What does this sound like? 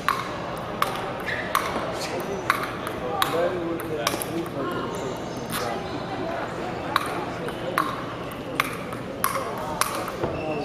Pings and pongs are occurring along with scuffing, and a crowd is talking in the background